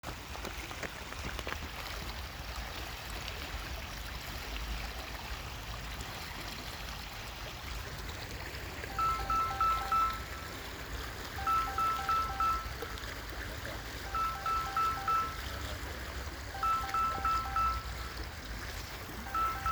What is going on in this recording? I was sitting nearby small lake behind my residence where a smooth flow of water there was a lound phone rinning at the end